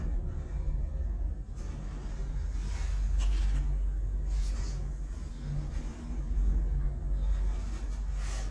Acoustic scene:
elevator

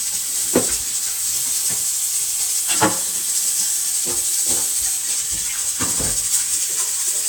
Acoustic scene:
kitchen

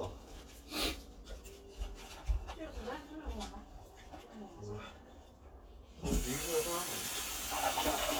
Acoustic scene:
kitchen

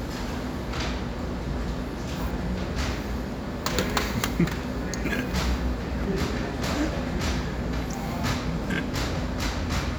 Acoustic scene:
cafe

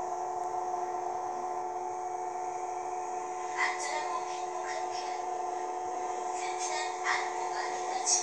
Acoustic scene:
subway train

